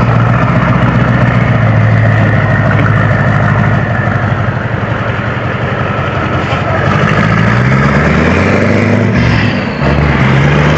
A engine is running, and taking off